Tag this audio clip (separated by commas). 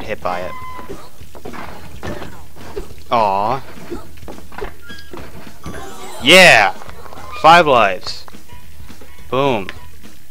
outside, rural or natural, Music, Speech